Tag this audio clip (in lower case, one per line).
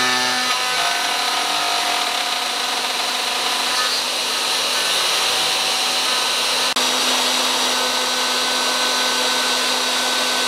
wood
tools
drill